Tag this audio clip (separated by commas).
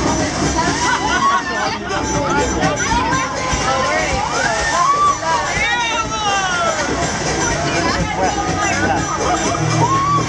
Music, Speech